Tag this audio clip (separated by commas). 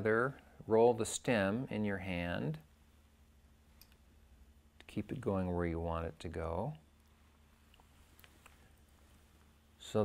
Speech